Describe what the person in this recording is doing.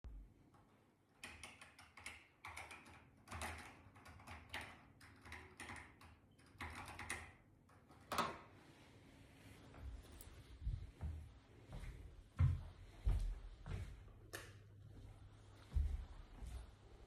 After typing on the keyboard I went out of the room and switched the light off.